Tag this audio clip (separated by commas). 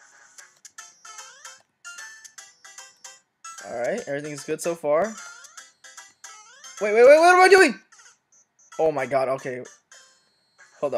Speech, Music